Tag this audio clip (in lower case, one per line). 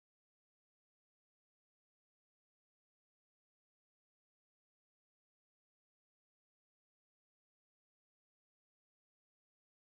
silence